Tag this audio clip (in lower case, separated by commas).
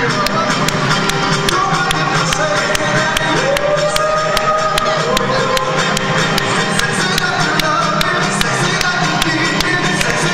music, whoop